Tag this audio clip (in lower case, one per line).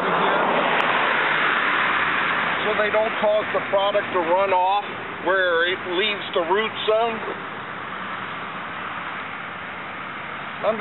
speech